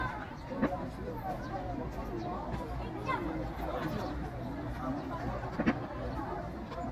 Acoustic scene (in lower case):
park